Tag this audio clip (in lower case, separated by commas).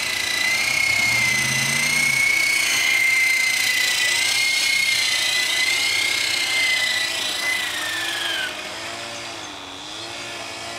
helicopter